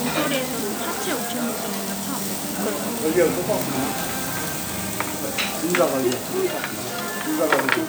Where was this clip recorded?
in a restaurant